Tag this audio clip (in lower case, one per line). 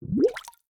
gurgling
water